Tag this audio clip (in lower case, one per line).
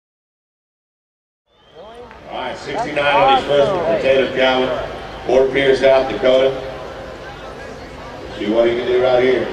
speech